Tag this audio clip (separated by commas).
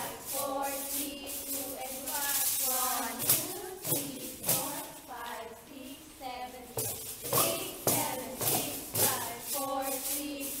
Musical instrument, Tambourine, Music